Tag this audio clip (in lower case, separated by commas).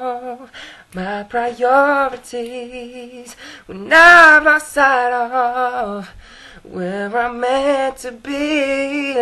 male singing